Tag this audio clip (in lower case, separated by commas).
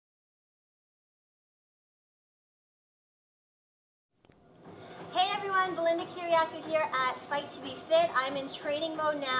inside a large room or hall, speech